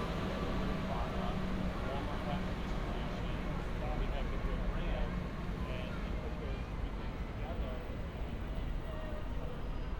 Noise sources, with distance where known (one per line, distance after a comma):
engine of unclear size
person or small group talking, far